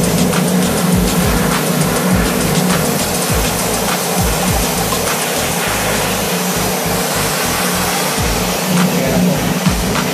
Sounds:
music
spray

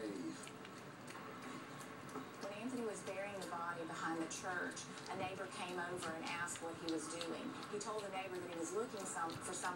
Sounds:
speech

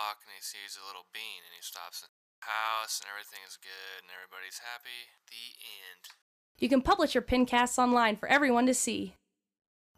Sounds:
speech

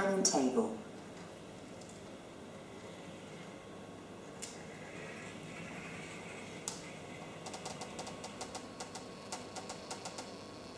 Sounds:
speech

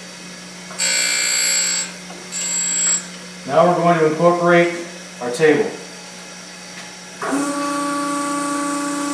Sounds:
power tool
speech

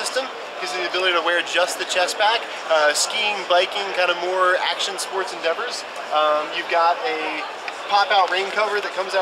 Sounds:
speech

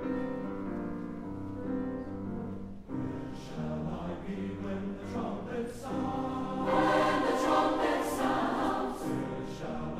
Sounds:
music

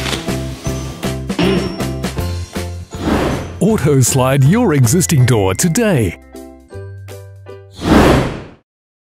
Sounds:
sliding door
speech
music

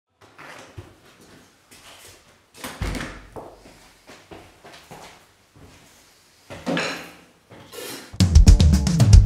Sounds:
inside a large room or hall
musical instrument
drum kit
drum
music

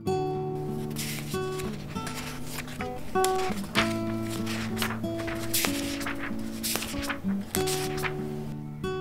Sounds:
music
speech

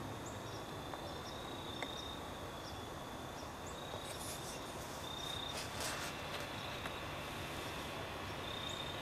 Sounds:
animal
bird

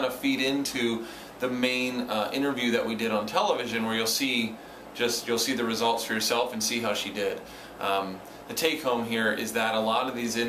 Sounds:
man speaking
speech

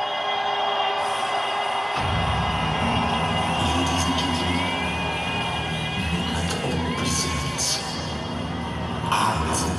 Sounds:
music
speech

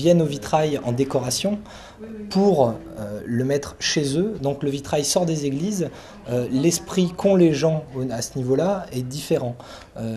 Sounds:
speech

